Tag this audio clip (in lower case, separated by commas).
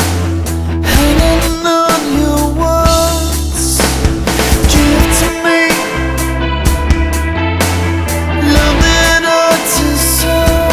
music